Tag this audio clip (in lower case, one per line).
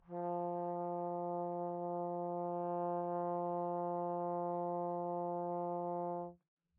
musical instrument
music
brass instrument